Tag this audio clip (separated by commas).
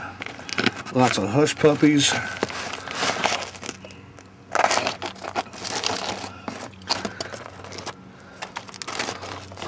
Speech